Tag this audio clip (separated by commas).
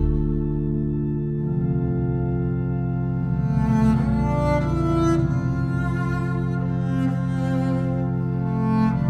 playing double bass